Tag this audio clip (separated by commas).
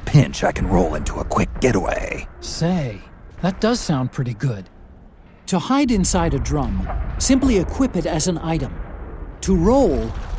Speech